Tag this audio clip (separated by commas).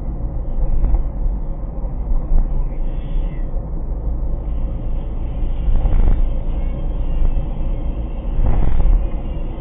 Car, Music, Vehicle